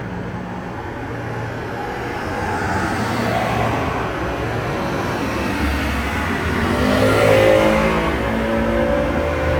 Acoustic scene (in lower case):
street